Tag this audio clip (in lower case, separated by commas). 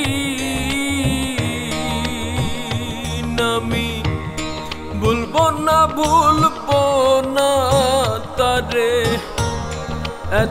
people humming